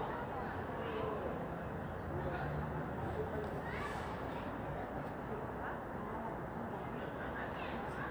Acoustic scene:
residential area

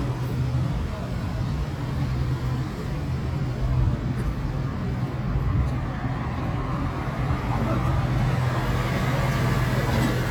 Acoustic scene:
street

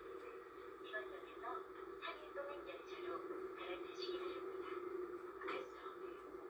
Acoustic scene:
subway train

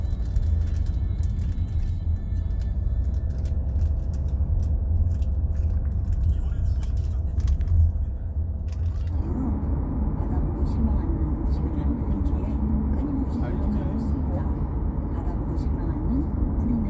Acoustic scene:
car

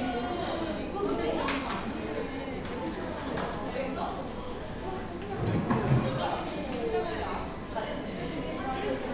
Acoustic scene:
cafe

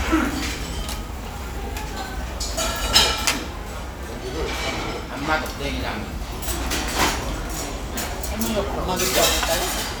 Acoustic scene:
restaurant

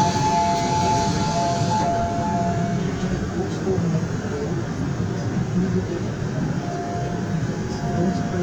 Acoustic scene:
subway train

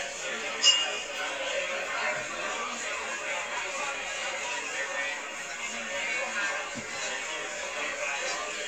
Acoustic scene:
crowded indoor space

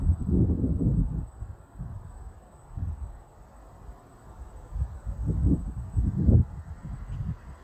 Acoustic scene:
residential area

